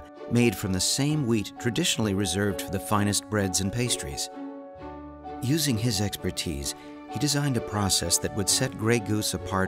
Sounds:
music, speech

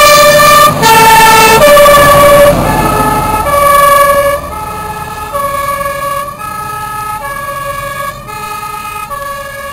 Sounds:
emergency vehicle, fire truck (siren), siren

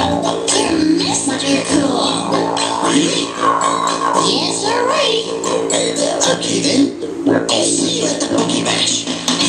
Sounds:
inside a small room, music, techno

